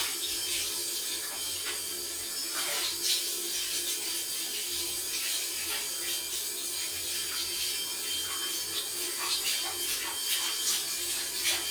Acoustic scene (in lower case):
restroom